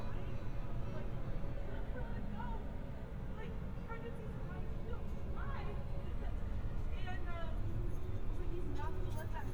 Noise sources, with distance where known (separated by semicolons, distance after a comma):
person or small group talking